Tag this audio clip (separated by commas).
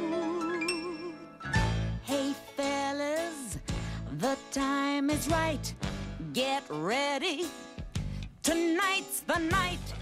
Music